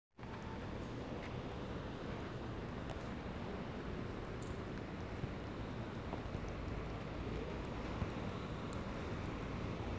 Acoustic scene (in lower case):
residential area